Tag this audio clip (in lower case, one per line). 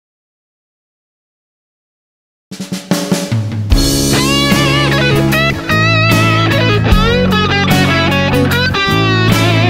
electric guitar
guitar
plucked string instrument
music
strum
acoustic guitar
musical instrument